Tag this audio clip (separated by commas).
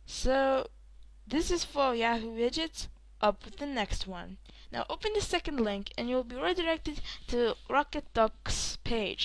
monologue